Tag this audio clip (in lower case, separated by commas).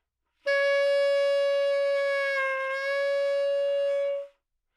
musical instrument, woodwind instrument, music